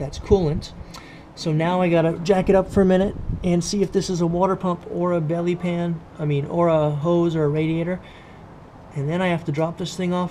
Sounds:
Speech

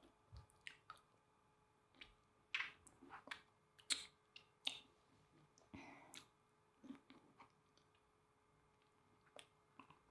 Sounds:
people eating

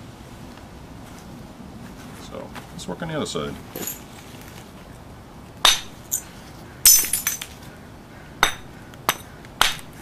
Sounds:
Hammer

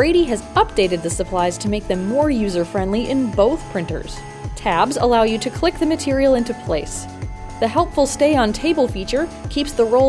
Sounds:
Speech, Music

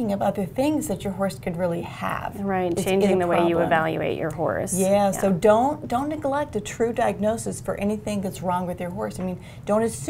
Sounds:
Speech

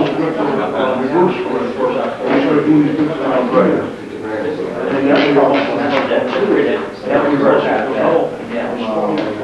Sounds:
Wind noise (microphone), Speech

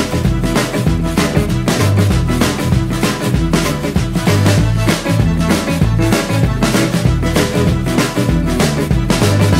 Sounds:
Jingle (music), Music

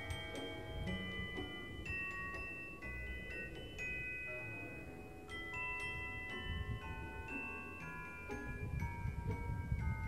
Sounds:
Marimba, Mallet percussion, Glockenspiel

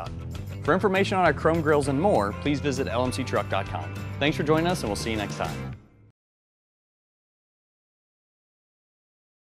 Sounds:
Speech, Music

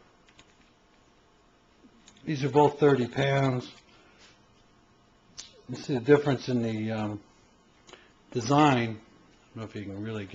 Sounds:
Speech

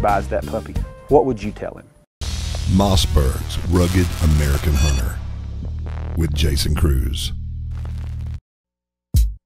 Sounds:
Speech, Music

